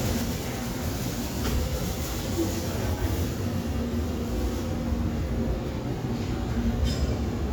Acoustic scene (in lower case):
subway station